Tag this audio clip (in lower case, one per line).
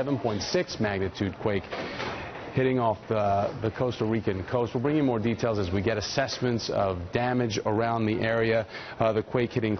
speech